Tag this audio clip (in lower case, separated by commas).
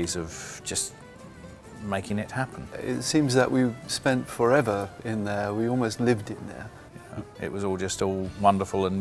music, speech